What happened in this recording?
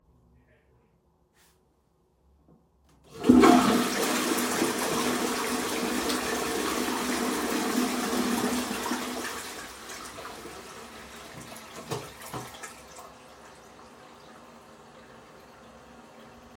Flush the toilet in the bathroom.